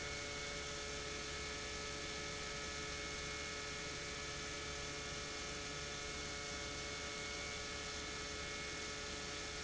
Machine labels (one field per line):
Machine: pump